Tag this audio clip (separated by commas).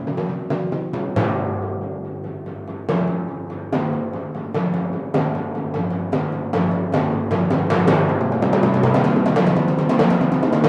playing tympani